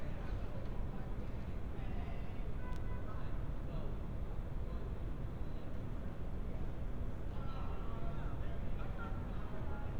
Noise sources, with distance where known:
car horn, far
person or small group talking, far

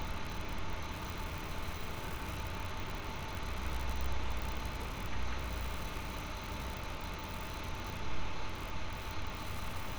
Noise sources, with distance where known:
engine of unclear size, far

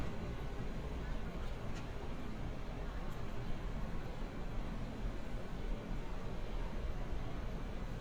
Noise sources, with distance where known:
person or small group talking, far

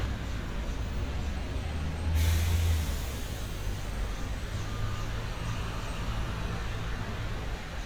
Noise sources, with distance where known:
large-sounding engine, near

